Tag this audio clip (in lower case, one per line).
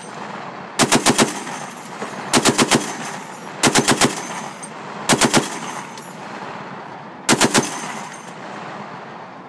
speech
outside, rural or natural
machine gun shooting
machine gun